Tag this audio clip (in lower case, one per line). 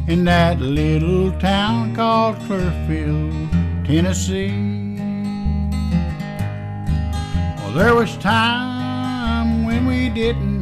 rhythm and blues
music
bluegrass
country